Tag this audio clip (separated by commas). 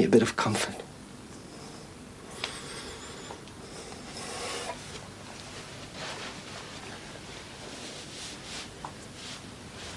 inside a small room, Speech